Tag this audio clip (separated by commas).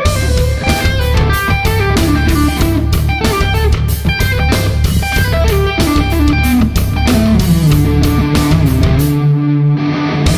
Musical instrument, Guitar, Plucked string instrument, Music